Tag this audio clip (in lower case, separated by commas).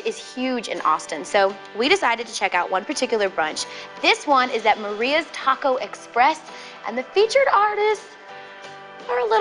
music, speech